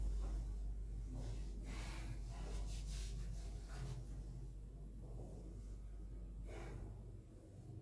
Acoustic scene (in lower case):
elevator